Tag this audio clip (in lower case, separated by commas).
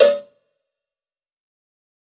cowbell, bell